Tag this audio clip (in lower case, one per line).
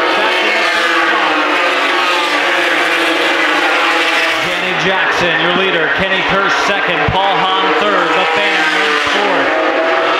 vehicle
speech
car